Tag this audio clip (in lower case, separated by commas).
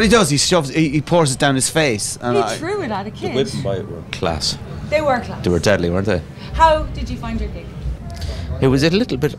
speech